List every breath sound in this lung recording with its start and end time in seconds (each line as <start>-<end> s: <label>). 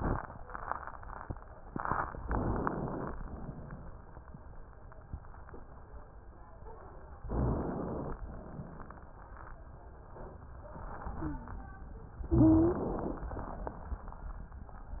2.26-3.11 s: inhalation
2.26-3.11 s: crackles
7.30-8.16 s: inhalation
12.29-12.89 s: wheeze
12.29-13.25 s: inhalation